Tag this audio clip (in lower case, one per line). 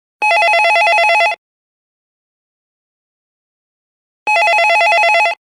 telephone
alarm